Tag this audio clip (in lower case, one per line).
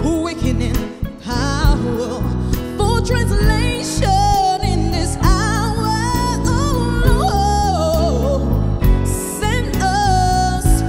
music